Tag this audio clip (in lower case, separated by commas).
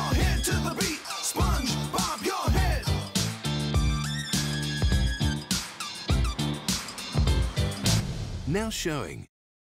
music, speech